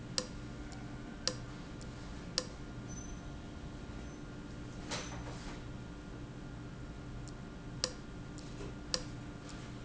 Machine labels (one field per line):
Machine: valve